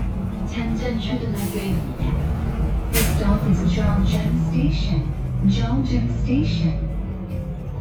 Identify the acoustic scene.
bus